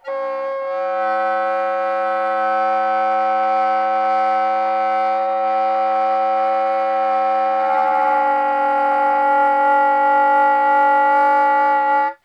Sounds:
Music, Musical instrument, Wind instrument

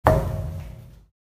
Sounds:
thud

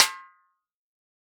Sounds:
Music, Snare drum, Musical instrument, Drum, Percussion

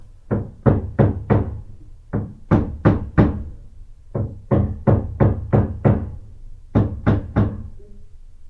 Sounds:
Hammer, Tools

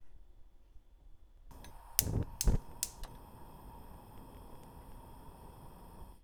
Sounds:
Fire

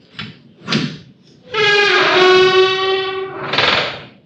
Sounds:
Door, Squeak, home sounds

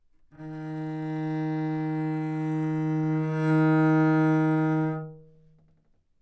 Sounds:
Bowed string instrument, Music, Musical instrument

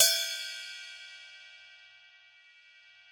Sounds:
Percussion, Cymbal, Music, Hi-hat, Musical instrument

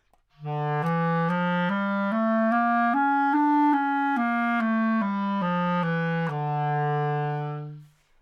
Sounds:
Music, woodwind instrument, Musical instrument

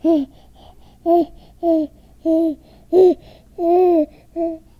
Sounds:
Speech, Human voice

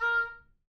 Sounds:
Wind instrument, Music, Musical instrument

